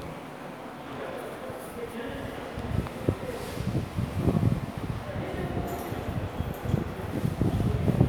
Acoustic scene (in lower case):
subway station